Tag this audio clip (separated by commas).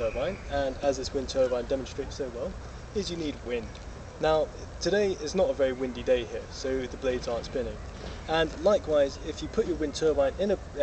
Speech